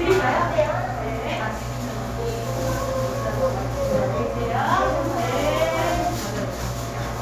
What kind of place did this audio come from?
cafe